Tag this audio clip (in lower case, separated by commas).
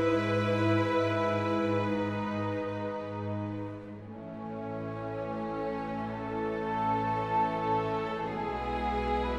music